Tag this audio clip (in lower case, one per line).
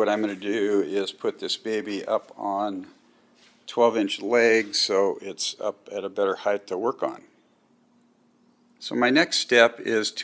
speech